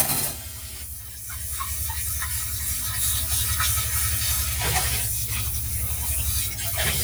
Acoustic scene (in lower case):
kitchen